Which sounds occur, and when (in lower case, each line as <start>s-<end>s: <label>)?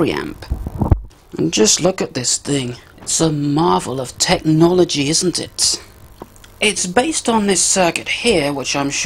0.0s-0.3s: male speech
0.0s-9.0s: mechanisms
0.3s-1.0s: wind noise (microphone)
0.4s-0.5s: generic impact sounds
1.1s-1.3s: generic impact sounds
1.3s-2.8s: male speech
2.9s-3.2s: generic impact sounds
3.0s-5.9s: male speech
6.2s-6.2s: tick
6.4s-6.4s: tick
6.6s-9.0s: male speech
7.9s-8.0s: tick